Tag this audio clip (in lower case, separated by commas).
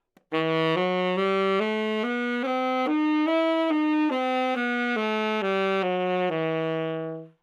musical instrument, music, woodwind instrument